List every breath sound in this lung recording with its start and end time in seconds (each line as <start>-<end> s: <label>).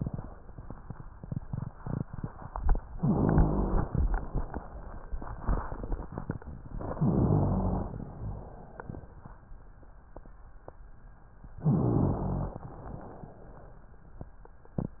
2.93-3.99 s: inhalation
3.00-3.89 s: rhonchi
6.72-8.00 s: inhalation
6.99-7.91 s: rhonchi
7.95-9.37 s: exhalation
7.95-9.37 s: crackles
11.60-12.55 s: rhonchi
11.64-12.60 s: inhalation
12.56-13.82 s: exhalation